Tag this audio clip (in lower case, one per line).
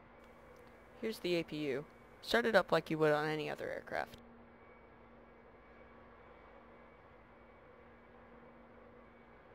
speech